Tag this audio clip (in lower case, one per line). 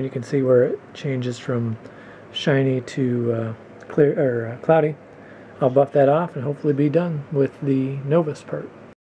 speech